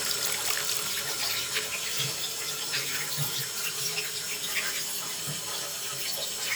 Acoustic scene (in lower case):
restroom